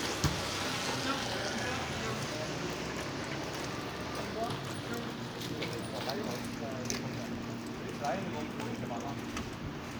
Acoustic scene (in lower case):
residential area